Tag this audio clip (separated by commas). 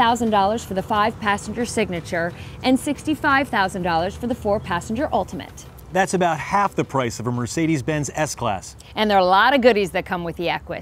Music, Speech